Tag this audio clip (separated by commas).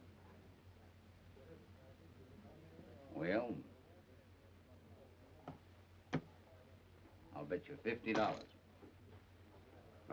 Speech